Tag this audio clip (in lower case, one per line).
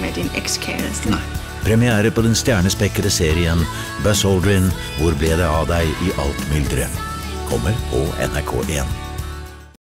speech
music